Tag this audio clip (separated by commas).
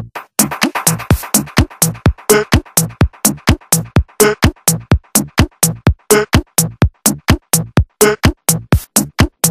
Music